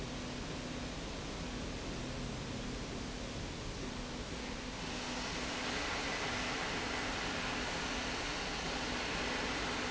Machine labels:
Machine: slide rail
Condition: normal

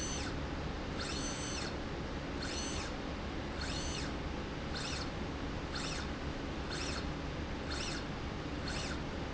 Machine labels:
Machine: slide rail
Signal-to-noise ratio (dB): -6 dB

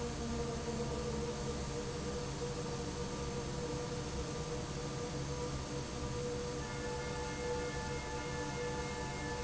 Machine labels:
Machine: fan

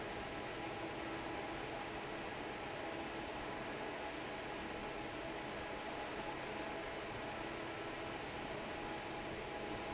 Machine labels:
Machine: fan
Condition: normal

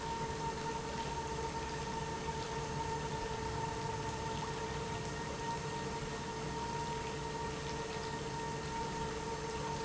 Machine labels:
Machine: pump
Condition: normal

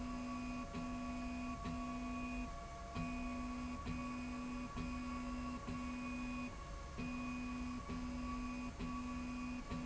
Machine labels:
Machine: slide rail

